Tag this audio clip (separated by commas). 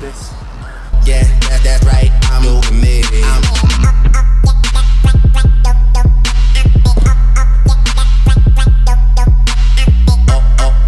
Music, Speech